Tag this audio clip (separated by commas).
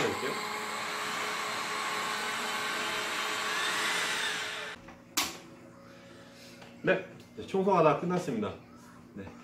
vacuum cleaner cleaning floors